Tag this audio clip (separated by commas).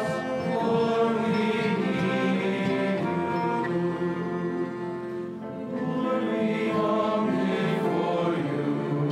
Cello, Classical music, Choir, Music